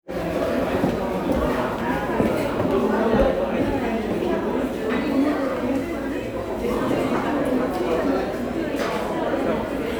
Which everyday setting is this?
crowded indoor space